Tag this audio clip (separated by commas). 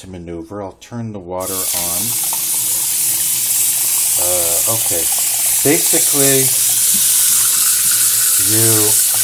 Speech